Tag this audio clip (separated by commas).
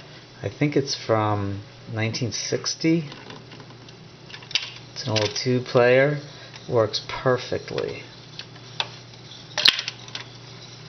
Speech